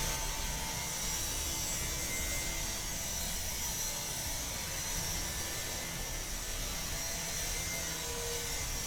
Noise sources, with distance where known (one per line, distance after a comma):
large rotating saw, near